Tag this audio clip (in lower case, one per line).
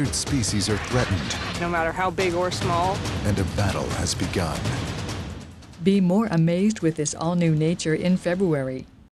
music
speech